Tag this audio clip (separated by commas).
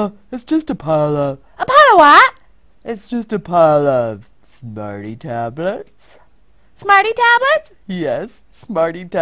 Speech